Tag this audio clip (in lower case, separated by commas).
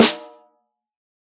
percussion, music, snare drum, musical instrument, drum